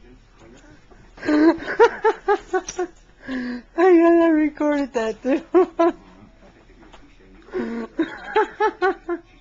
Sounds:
speech

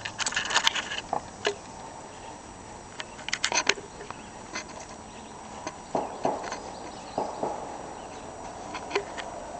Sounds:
animal

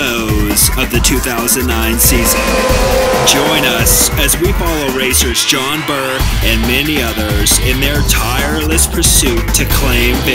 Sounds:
speech
music

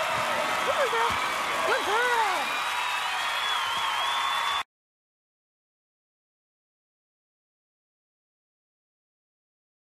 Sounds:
speech

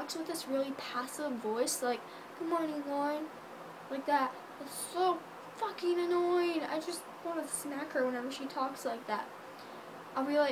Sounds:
inside a small room
speech

